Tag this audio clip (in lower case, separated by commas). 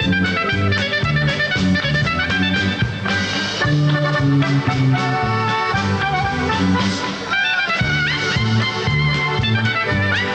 music, woodwind instrument, orchestra, musical instrument, clarinet